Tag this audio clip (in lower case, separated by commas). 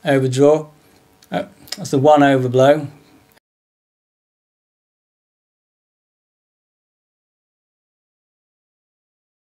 speech